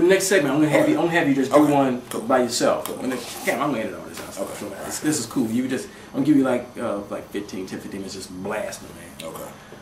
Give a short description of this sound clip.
A man delivering speech and gets responded by other men